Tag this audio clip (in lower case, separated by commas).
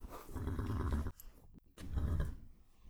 animal, livestock